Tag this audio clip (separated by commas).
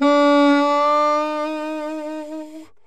Music, Musical instrument, woodwind instrument